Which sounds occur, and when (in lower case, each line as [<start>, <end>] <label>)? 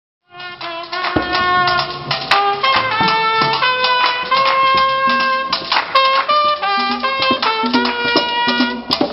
[0.19, 9.12] music